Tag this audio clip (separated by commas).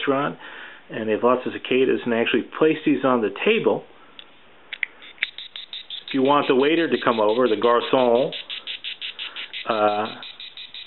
Speech